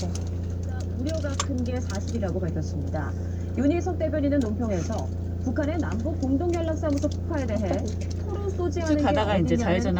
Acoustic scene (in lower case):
car